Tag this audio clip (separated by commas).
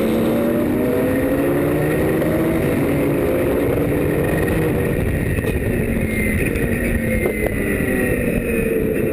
Vehicle, Motor vehicle (road), Car